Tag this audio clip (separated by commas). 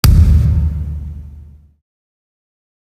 thud